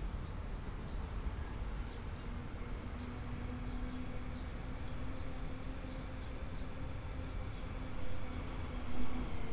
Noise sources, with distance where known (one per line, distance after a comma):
medium-sounding engine